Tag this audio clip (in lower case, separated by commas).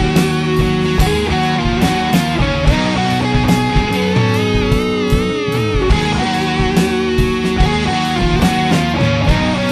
steel guitar, music, heavy metal